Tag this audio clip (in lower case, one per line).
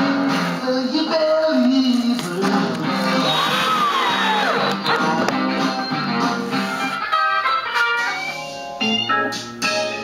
music